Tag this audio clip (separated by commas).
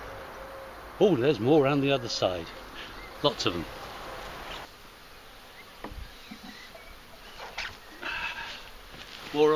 Speech, outside, rural or natural